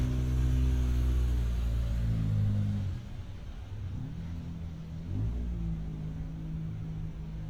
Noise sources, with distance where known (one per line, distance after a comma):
engine of unclear size, far